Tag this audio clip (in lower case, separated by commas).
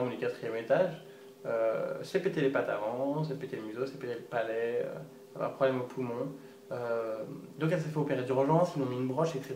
speech